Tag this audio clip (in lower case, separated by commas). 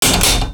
mechanisms